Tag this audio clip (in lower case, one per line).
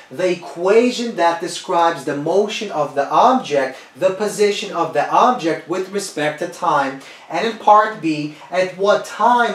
speech